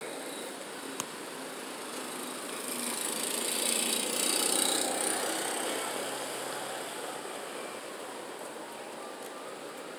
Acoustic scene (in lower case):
residential area